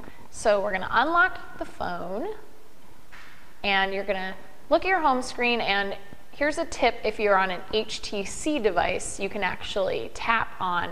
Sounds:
speech

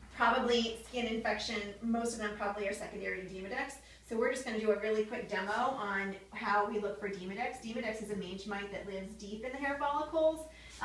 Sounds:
speech

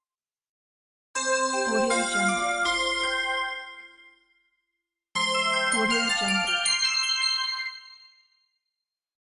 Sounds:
music
speech

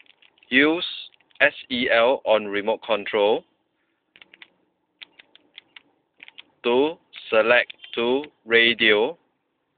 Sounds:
speech

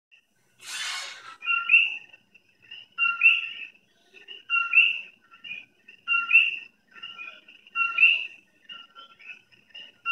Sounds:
television
music

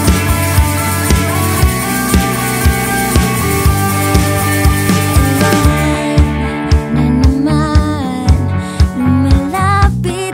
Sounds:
soundtrack music
music

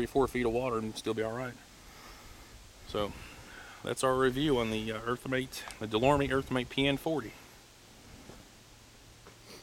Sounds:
outside, rural or natural
speech

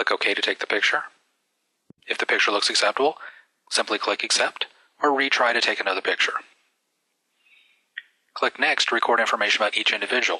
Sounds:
speech

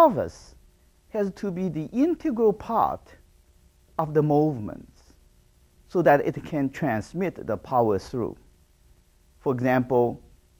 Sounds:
speech

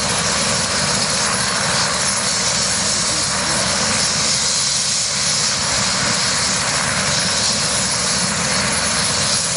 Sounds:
vehicle
helicopter
aircraft engine

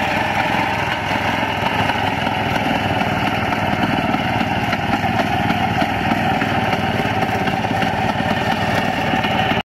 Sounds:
engine
vehicle
idling
medium engine (mid frequency)

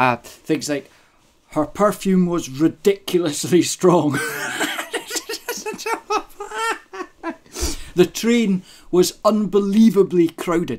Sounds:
speech

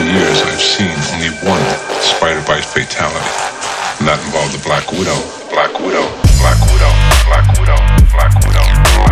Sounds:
speech
music
static

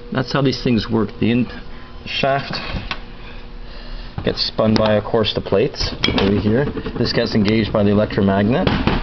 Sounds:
speech

